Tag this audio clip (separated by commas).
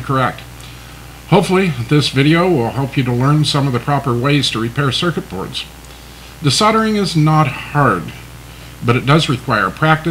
Speech